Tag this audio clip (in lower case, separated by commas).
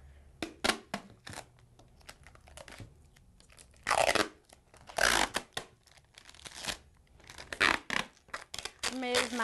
speech, inside a large room or hall, tearing